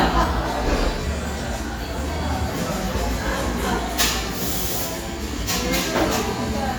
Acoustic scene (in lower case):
cafe